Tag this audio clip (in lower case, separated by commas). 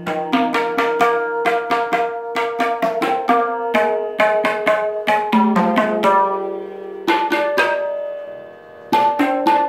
playing tabla